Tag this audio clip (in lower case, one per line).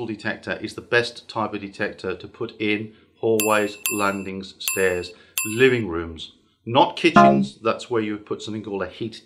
speech